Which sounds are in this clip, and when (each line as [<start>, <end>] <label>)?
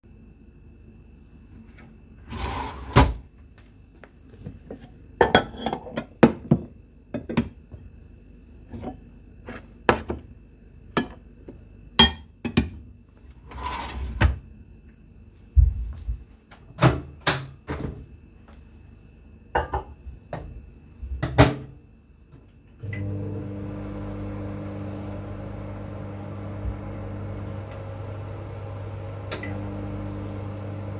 [2.27, 3.33] wardrobe or drawer
[4.68, 12.90] cutlery and dishes
[13.51, 14.52] wardrobe or drawer
[15.50, 16.27] footsteps
[16.70, 18.27] microwave
[19.44, 20.64] cutlery and dishes
[20.33, 21.83] microwave
[22.32, 31.00] microwave